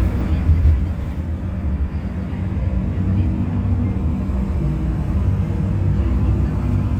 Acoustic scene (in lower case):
bus